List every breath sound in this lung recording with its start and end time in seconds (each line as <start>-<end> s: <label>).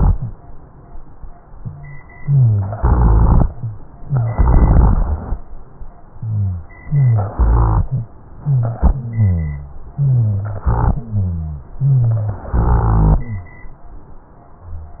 2.18-2.77 s: inhalation
2.20-2.77 s: rhonchi
2.77-3.44 s: exhalation
2.77-3.46 s: crackles
3.51-3.79 s: rhonchi
4.02-4.36 s: rhonchi
4.04-4.34 s: inhalation
4.34-5.31 s: exhalation
4.34-5.31 s: crackles
6.19-6.66 s: inhalation
6.19-6.66 s: rhonchi
6.85-7.33 s: inhalation
6.85-7.33 s: rhonchi
7.38-8.10 s: exhalation
7.38-8.10 s: crackles
8.44-8.84 s: inhalation
8.44-8.84 s: rhonchi
8.94-9.81 s: exhalation
8.94-9.81 s: rhonchi
9.96-10.61 s: inhalation
9.96-10.61 s: rhonchi
10.70-11.06 s: crackles
10.70-11.71 s: exhalation
11.06-11.73 s: rhonchi
11.82-12.48 s: inhalation
11.82-12.48 s: rhonchi
12.52-13.60 s: exhalation
12.52-13.60 s: crackles